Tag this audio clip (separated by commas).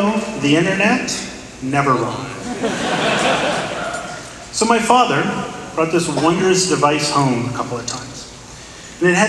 Male speech, Speech, monologue